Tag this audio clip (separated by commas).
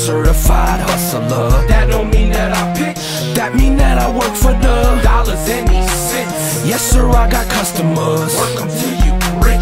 Music